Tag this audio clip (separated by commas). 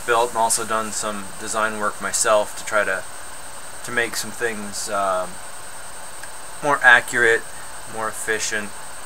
Speech